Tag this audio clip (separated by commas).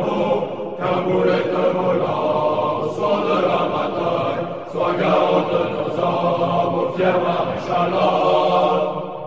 Mantra